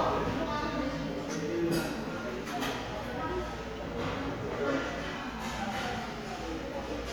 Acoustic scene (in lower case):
restaurant